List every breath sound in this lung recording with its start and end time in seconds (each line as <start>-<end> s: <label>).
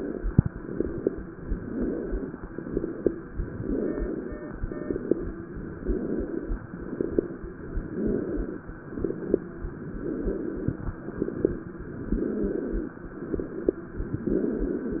0.30-1.14 s: exhalation
0.30-1.14 s: crackles
1.48-2.32 s: inhalation
1.48-2.32 s: crackles
2.41-3.25 s: exhalation
2.41-3.25 s: crackles
3.49-4.33 s: inhalation
3.49-4.33 s: crackles
4.63-5.47 s: exhalation
4.63-5.47 s: crackles
5.75-6.58 s: inhalation
5.75-6.58 s: crackles
6.66-7.50 s: exhalation
6.66-7.50 s: crackles
7.76-8.60 s: inhalation
7.78-8.62 s: crackles
8.82-9.66 s: exhalation
8.82-9.66 s: crackles
9.96-10.91 s: inhalation
9.96-10.91 s: crackles
10.97-11.79 s: exhalation
10.97-11.79 s: crackles
11.99-12.94 s: inhalation
11.99-12.94 s: crackles
13.15-13.97 s: exhalation
13.15-13.97 s: crackles
14.17-15.00 s: inhalation
14.17-15.00 s: crackles